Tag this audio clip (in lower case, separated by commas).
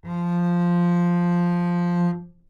musical instrument, music, bowed string instrument